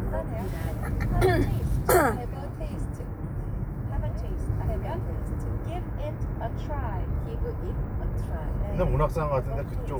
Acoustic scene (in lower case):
car